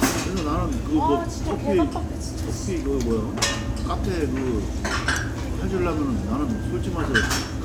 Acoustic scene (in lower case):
crowded indoor space